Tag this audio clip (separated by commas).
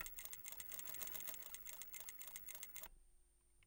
Mechanisms